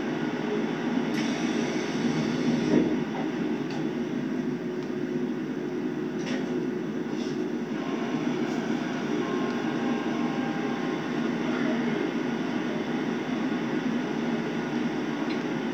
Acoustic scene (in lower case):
subway train